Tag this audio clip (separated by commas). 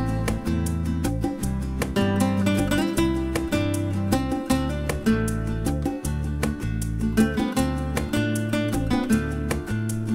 Musical instrument, Acoustic guitar, Guitar, Plucked string instrument, Music